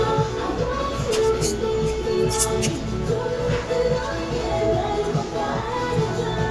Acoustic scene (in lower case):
cafe